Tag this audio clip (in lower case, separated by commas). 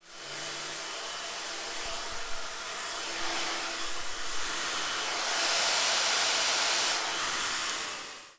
home sounds